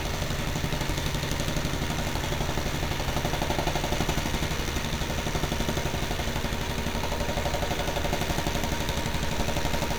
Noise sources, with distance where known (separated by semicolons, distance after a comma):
jackhammer, near